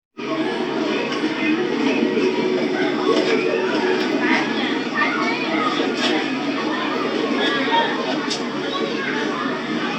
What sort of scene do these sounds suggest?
park